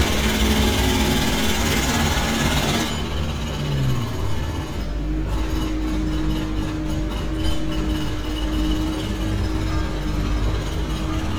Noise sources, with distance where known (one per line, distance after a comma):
jackhammer, near